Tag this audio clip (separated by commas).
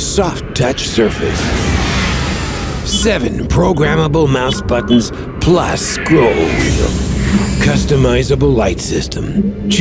Speech